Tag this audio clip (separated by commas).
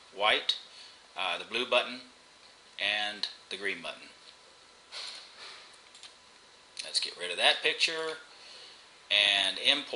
Speech